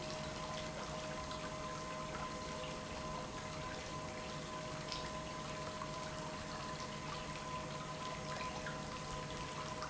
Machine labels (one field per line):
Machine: pump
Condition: normal